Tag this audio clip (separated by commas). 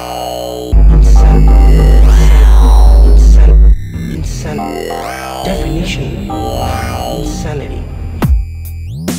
Dubstep, Electronic music, Music, Speech